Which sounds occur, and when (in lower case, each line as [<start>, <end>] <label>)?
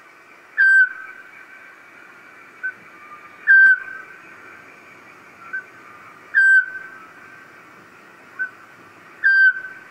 [0.00, 9.90] background noise
[0.59, 1.30] owl
[2.54, 2.75] owl
[3.51, 4.17] owl
[5.51, 5.76] owl
[6.33, 7.28] owl
[8.40, 8.64] owl
[9.23, 9.90] owl